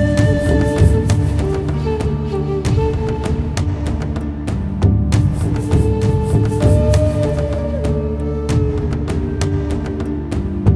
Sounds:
Music

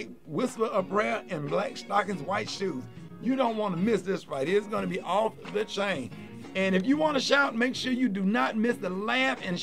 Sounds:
Music, Speech

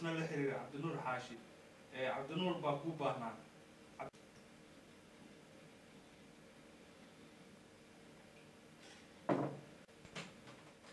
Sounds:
Speech

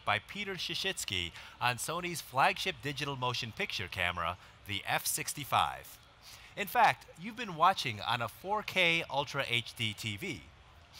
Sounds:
Speech

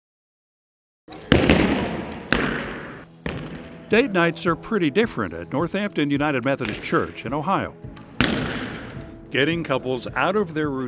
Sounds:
Arrow

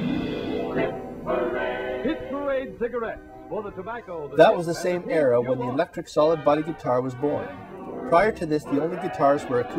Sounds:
Guitar, Musical instrument, Music, Speech

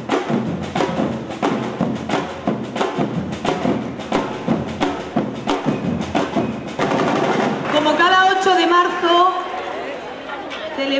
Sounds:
people marching

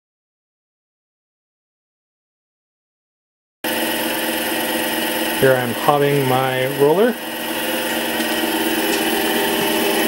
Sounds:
Speech, Tools

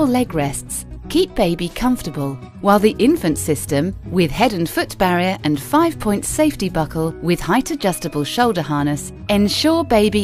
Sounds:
Music, Speech

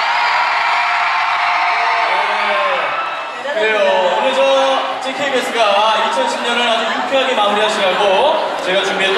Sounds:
Speech

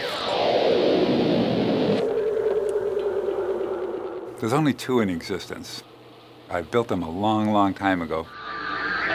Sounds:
Speech, Music, inside a large room or hall

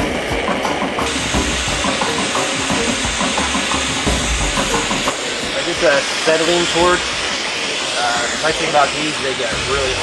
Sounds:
Speech, Music

